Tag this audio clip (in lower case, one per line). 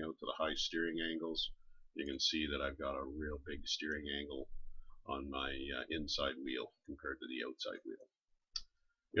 clicking